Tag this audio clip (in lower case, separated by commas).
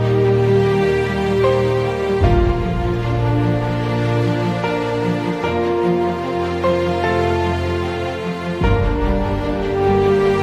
music